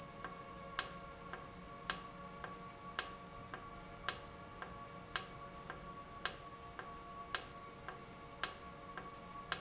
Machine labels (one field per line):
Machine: valve